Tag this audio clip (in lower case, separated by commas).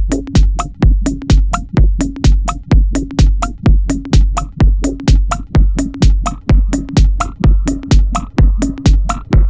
music